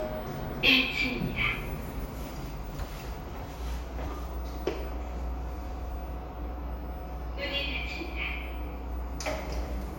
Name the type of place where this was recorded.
elevator